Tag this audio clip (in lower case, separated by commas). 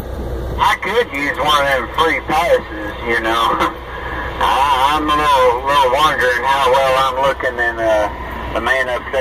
speech